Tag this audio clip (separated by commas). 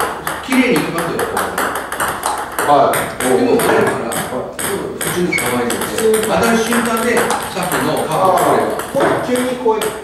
playing table tennis